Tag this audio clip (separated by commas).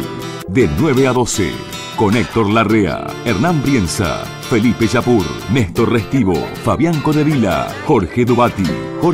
Music, Speech